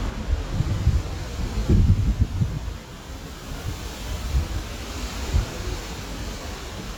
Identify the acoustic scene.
street